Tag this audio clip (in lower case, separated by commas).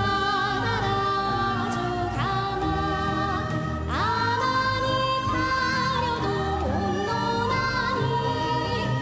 music